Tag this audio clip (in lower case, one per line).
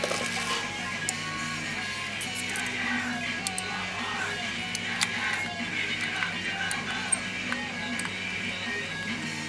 music